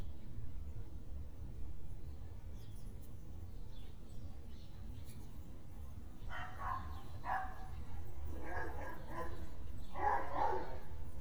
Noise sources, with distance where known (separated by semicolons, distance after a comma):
dog barking or whining, near